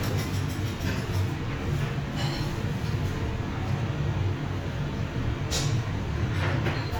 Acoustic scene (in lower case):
restaurant